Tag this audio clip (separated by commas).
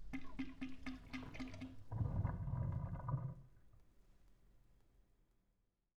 Sink (filling or washing), home sounds